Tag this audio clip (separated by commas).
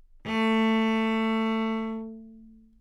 Bowed string instrument, Music, Musical instrument